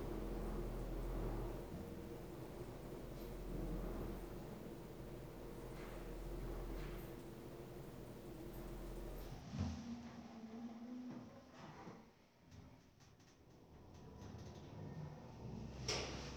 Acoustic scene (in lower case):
elevator